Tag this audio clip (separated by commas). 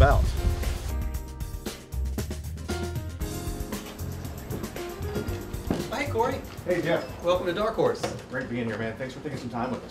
Speech, Music